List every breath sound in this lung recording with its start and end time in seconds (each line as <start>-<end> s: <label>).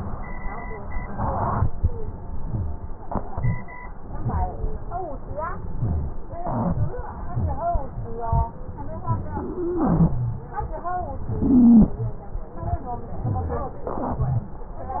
9.53-10.38 s: wheeze
11.40-12.01 s: wheeze